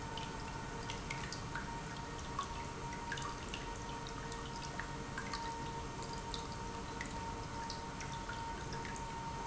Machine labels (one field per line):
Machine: pump